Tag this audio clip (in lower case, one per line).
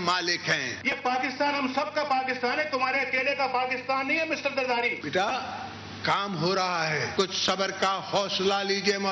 man speaking
speech
narration